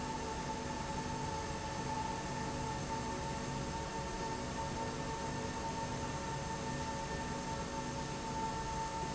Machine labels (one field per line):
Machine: slide rail